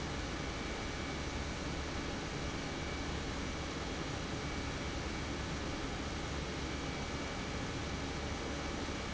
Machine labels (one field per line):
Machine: pump